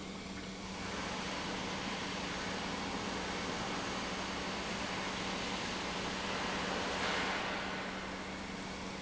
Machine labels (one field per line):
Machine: pump